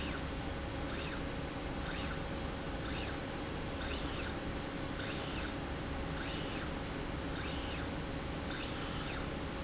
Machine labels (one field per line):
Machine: slide rail